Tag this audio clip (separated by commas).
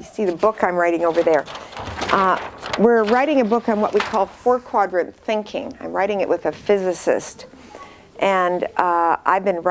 Speech